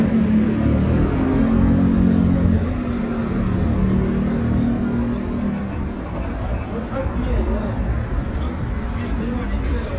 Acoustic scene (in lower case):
residential area